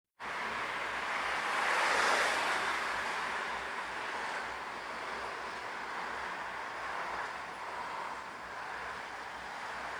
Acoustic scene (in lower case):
street